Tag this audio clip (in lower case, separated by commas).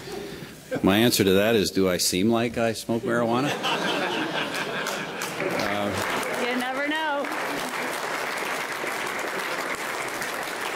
speech, applause